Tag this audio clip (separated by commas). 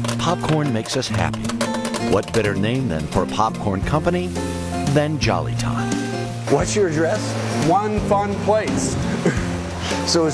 Speech